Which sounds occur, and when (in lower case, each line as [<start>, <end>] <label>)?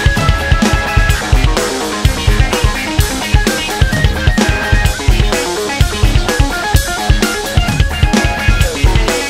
[0.00, 9.25] music